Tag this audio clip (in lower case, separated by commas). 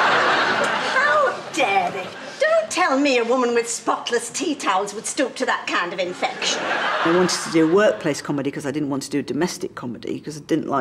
speech